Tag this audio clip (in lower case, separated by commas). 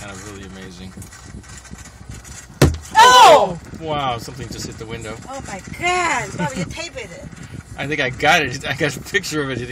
wind noise (microphone), speech